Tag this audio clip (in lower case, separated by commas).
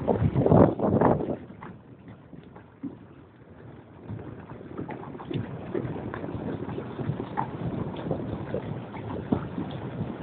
vehicle